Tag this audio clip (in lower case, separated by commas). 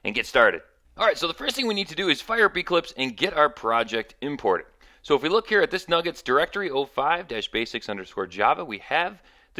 speech